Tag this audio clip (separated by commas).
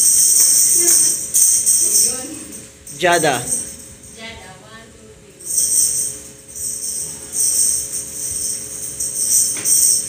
playing tambourine